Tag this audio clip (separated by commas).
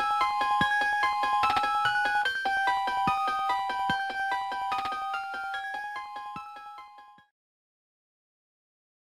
Jingle (music), Music